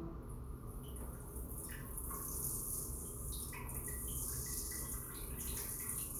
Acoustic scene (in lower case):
restroom